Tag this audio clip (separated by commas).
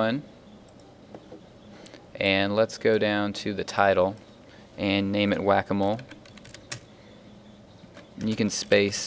Speech